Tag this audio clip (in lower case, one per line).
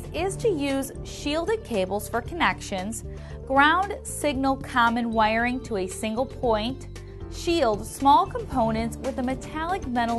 music
speech